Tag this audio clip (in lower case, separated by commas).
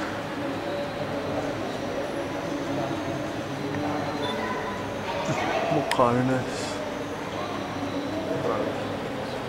speech